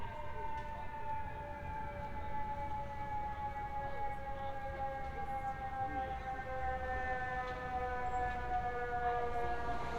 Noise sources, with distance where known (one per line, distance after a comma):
siren